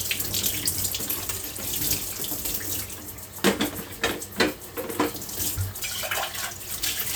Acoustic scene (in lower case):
kitchen